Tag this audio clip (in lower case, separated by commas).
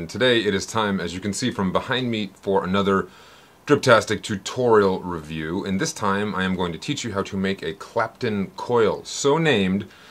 speech